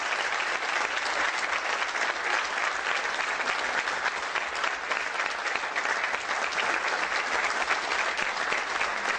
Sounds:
Applause, people clapping

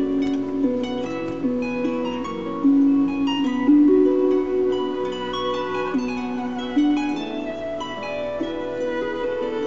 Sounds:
Violin, Bowed string instrument

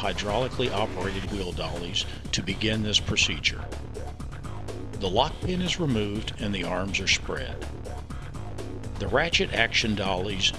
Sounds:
Speech, Music

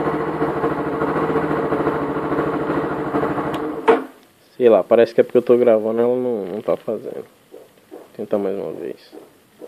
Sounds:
running electric fan

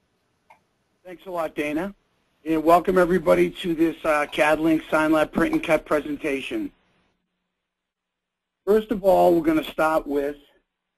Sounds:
Speech

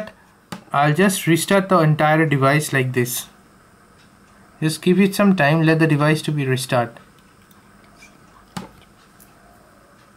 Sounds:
Speech, inside a small room

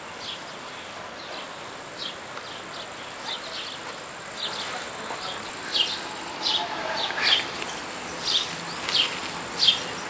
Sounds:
outside, urban or man-made, outside, rural or natural

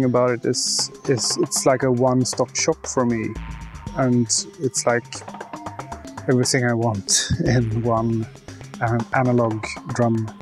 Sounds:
Speech, Music

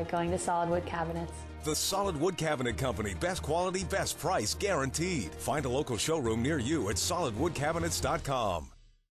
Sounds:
Music, Speech

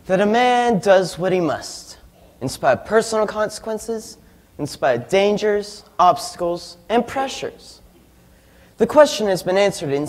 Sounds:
man speaking, Speech, Narration

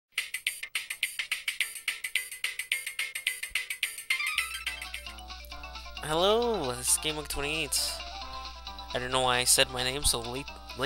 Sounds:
Speech, Music

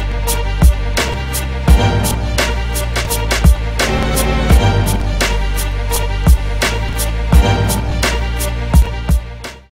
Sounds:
Music

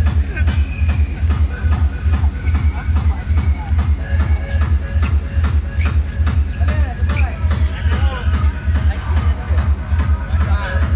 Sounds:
Speech, Music

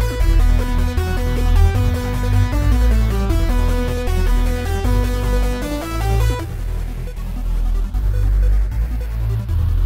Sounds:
Electronic music, Music, Techno

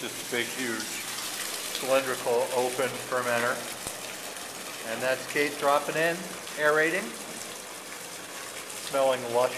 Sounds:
Speech, Gush

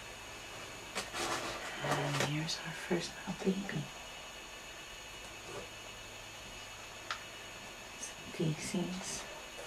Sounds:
inside a small room, Speech

